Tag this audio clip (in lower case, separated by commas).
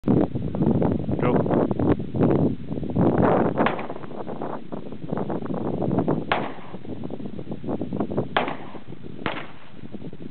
speech, outside, rural or natural